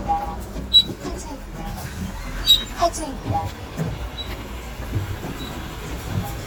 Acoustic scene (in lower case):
bus